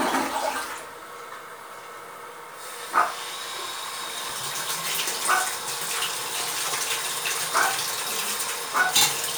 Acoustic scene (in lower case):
restroom